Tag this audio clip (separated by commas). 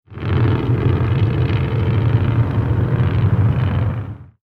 Motor vehicle (road), Vehicle, Truck